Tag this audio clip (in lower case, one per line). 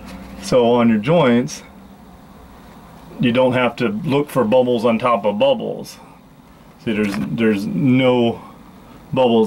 speech